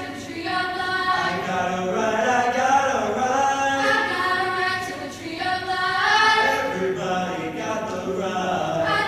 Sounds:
Choir

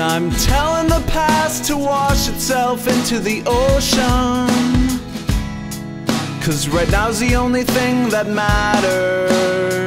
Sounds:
Rhythm and blues, Music

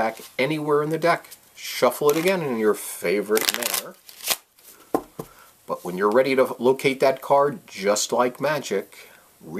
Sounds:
Speech

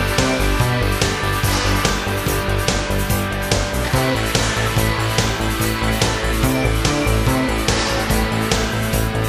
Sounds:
Music

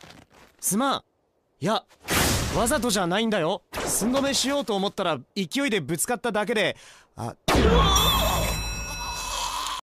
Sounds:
Speech

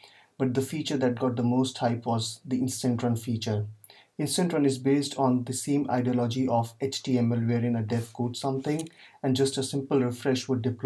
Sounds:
Speech

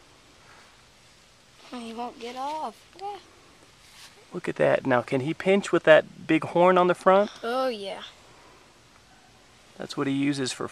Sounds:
Speech

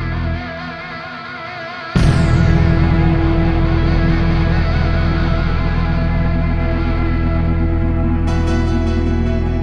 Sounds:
Sound effect, Music

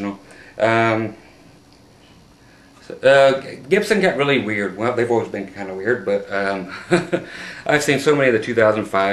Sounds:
Speech

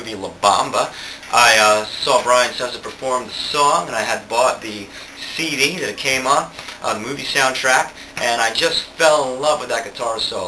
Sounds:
Speech

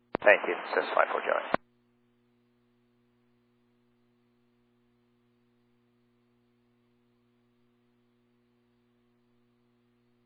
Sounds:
Speech

